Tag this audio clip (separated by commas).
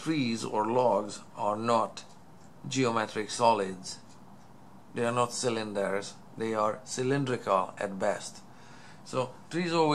Speech